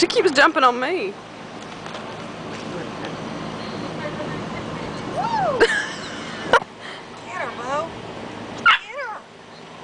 People speak and dogs bark